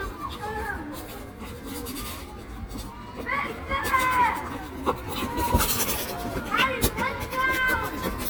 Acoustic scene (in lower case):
park